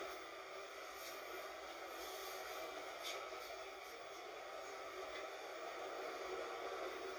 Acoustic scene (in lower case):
bus